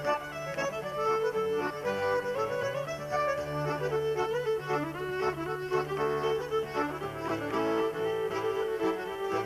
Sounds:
Music, Traditional music

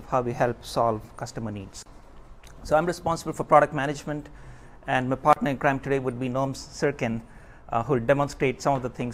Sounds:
Speech

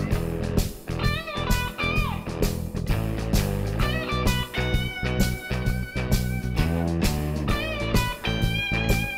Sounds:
Music, Blues

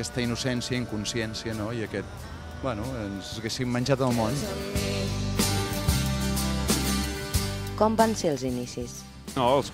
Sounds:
Music, Speech

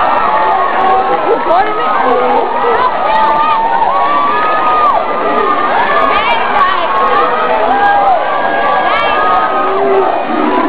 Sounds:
inside a large room or hall, inside a public space, Speech

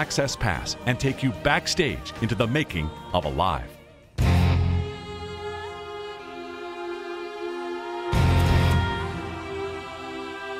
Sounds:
Speech, Music

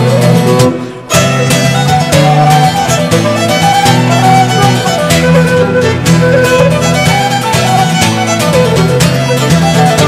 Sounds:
Bowed string instrument, Violin

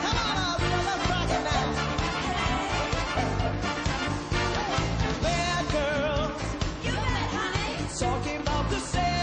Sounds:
Female speech, Music

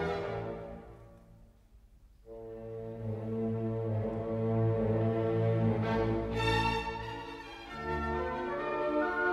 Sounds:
Music, Violin, Musical instrument

